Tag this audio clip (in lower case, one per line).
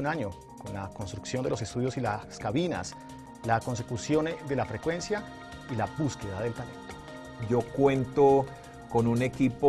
speech
music